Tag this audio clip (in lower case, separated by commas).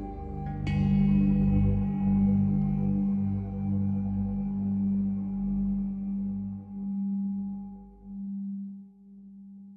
singing bowl